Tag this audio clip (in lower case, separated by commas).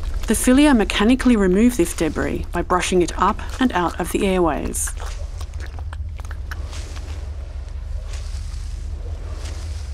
speech